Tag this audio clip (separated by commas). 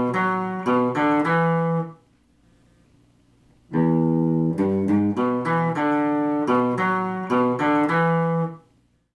Musical instrument, Acoustic guitar, Plucked string instrument, Music, Guitar